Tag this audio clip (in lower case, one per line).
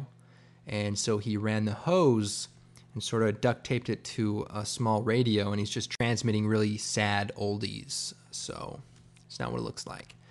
speech